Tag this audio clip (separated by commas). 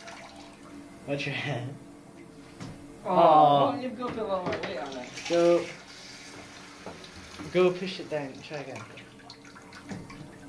Speech